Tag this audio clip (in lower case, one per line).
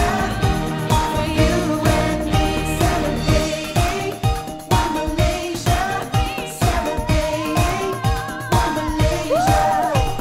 music of asia